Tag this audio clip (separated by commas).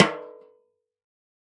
Music, Drum, Musical instrument, Percussion, Snare drum